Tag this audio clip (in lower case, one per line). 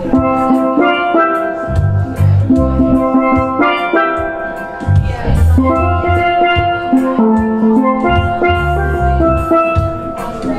percussion
music
steelpan
musical instrument
drum